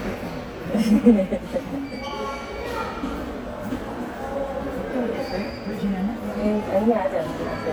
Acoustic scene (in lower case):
subway station